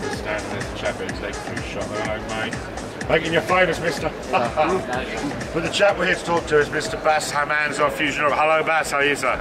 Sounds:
music, speech

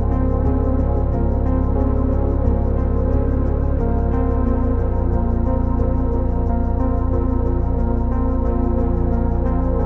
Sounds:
background music, ambient music

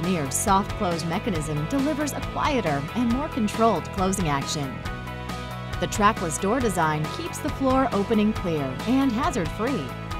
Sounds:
speech, music

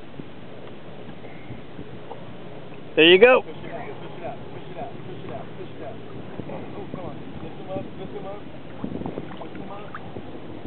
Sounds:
speech, canoe, water vehicle

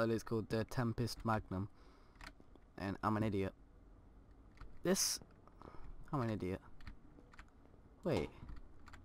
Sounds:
speech

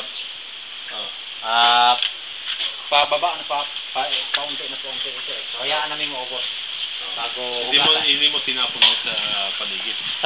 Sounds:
speech

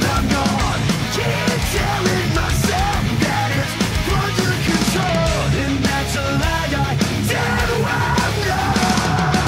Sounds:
pop music, music

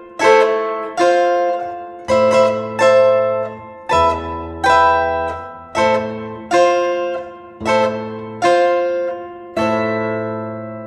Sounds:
musical instrument, music

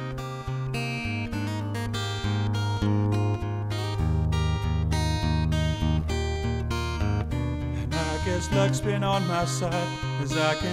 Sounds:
music, plucked string instrument, acoustic guitar, playing acoustic guitar, guitar, musical instrument

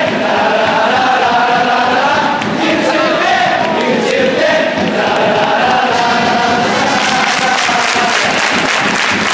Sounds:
people cheering

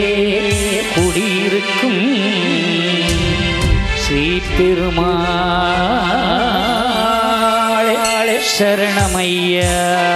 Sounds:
music

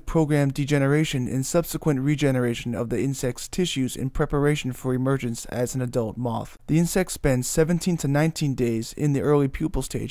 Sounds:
speech

